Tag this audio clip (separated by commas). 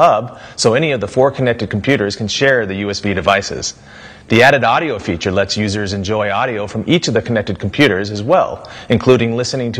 Speech